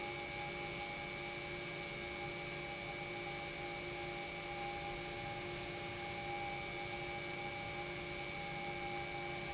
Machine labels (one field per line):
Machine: pump